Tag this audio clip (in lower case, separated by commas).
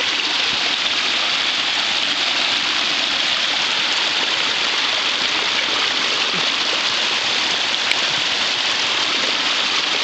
raindrop, rain